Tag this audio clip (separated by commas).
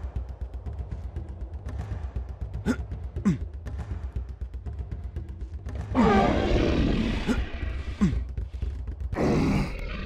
Music